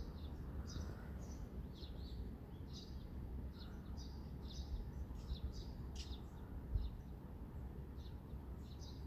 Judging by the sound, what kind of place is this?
residential area